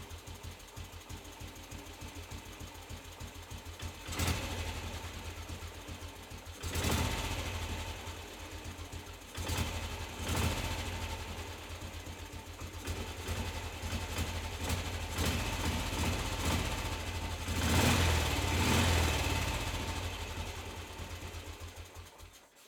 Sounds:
motorcycle, motor vehicle (road), vehicle

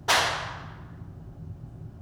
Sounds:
hands, clapping

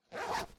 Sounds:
domestic sounds, zipper (clothing)

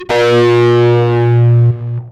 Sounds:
music, guitar, electric guitar, plucked string instrument, musical instrument

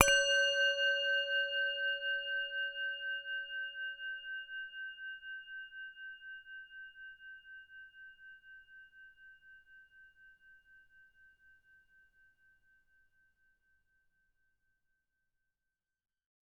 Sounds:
musical instrument, music

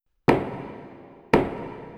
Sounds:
door, knock, home sounds

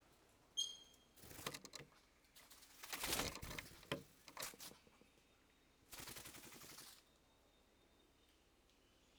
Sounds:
wild animals, bird, animal

